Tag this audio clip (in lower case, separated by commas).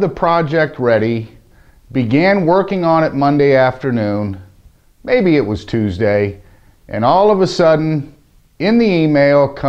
speech